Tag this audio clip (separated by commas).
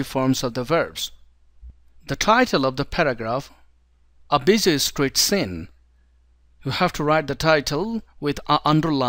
Speech